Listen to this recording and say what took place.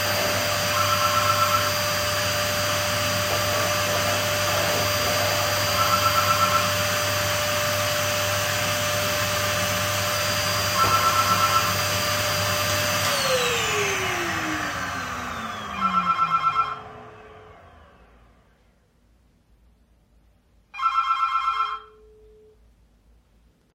The vacuum cleaner was on and a phone started ringing. While the phone was still ringing, the vacuum cleaner was turned off in order to pick up the phone.